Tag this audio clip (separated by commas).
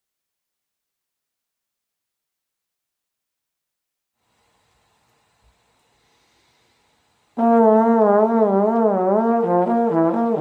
Brass instrument, Music, Trombone, Classical music, Musical instrument